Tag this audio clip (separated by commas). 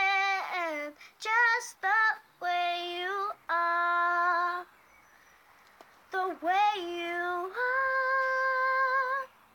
Child singing, Female singing